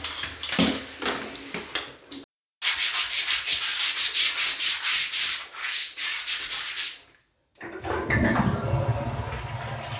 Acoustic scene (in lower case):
restroom